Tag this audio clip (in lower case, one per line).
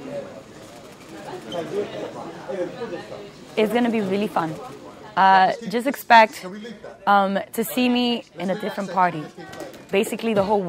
speech